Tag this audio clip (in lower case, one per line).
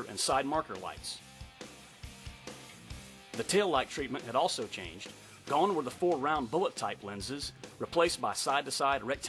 speech
music